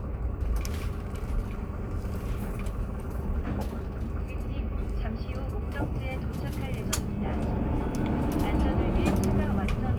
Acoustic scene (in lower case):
bus